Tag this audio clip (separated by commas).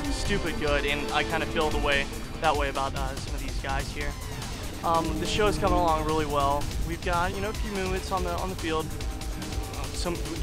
Music, Speech